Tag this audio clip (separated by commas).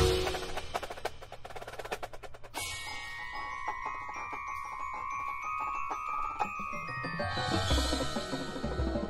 Musical instrument, Percussion, Music, Drum